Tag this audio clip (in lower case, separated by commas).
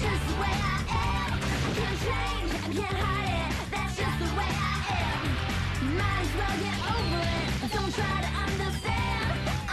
music